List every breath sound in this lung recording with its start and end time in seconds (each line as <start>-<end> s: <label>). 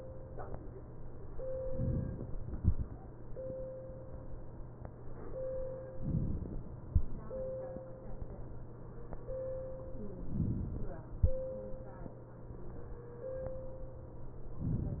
5.96-6.86 s: inhalation
10.21-11.11 s: inhalation